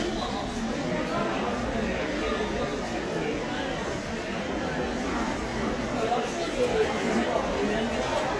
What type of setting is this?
crowded indoor space